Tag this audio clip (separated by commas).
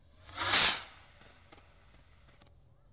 Fireworks, Explosion